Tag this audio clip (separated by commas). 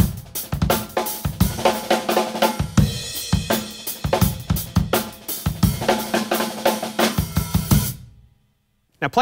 Cymbal, Hi-hat